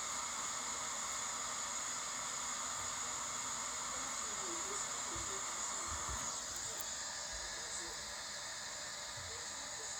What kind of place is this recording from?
kitchen